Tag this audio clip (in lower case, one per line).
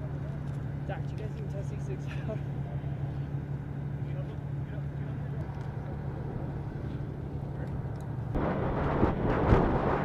speech